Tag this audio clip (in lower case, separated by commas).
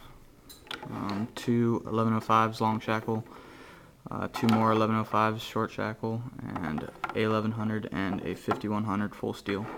tools, speech